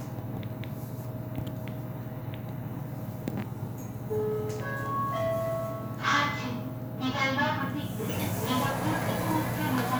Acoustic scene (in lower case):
elevator